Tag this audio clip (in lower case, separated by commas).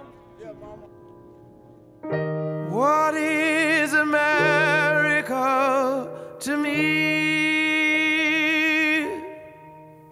music